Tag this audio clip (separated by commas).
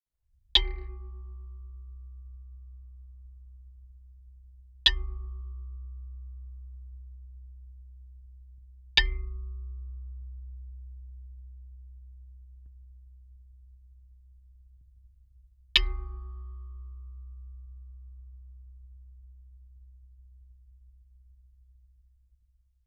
Tools, Hammer